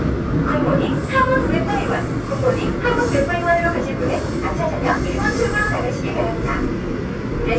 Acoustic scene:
subway train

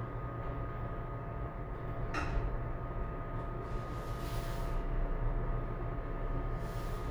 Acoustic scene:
elevator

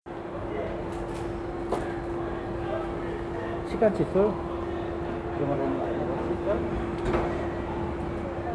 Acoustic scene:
crowded indoor space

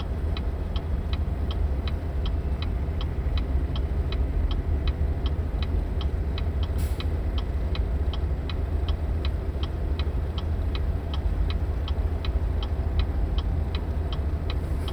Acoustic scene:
car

